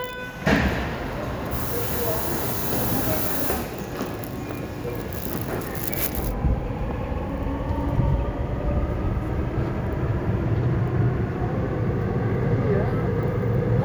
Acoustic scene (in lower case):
subway station